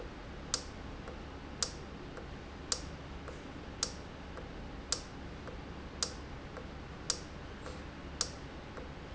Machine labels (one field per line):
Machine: valve